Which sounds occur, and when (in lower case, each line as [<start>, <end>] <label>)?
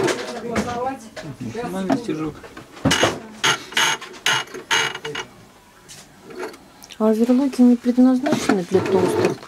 [0.00, 0.41] sewing machine
[0.00, 9.45] background noise
[0.22, 9.45] conversation
[0.28, 1.00] female speech
[0.51, 0.78] thud
[1.07, 1.21] tick
[1.20, 2.33] man speaking
[1.81, 1.99] generic impact sounds
[2.30, 2.63] generic impact sounds
[2.79, 3.11] thud
[2.82, 3.14] ratchet
[3.08, 3.41] female speech
[3.38, 4.54] ratchet
[4.67, 5.23] ratchet
[4.99, 5.29] man speaking
[5.84, 6.05] generic impact sounds
[6.24, 6.57] generic impact sounds
[6.73, 6.93] tick
[6.95, 9.04] female speech
[7.06, 8.16] surface contact
[8.21, 8.48] generic impact sounds
[8.68, 9.33] sewing machine